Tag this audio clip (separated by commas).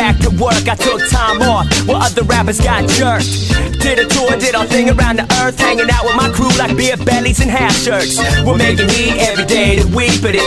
Sampler, Music